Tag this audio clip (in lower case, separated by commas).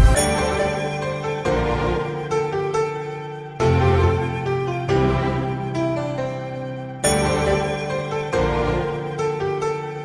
tender music, music